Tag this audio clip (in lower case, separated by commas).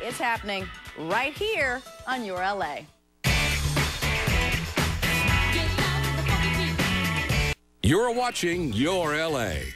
speech, music